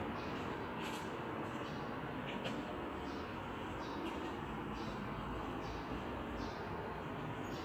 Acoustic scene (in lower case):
residential area